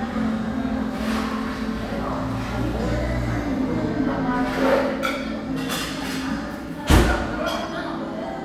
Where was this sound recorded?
in a crowded indoor space